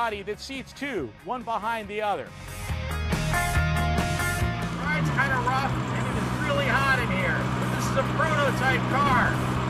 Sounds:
Speech, Music, Vehicle, Car

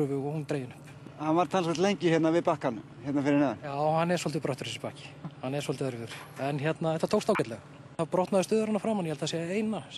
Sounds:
Speech

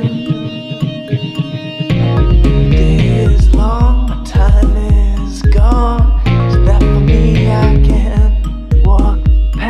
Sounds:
Guitar, Plucked string instrument

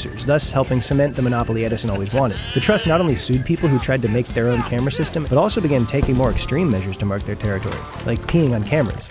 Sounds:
Music, Speech

